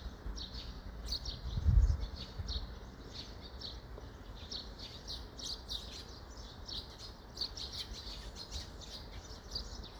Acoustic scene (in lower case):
park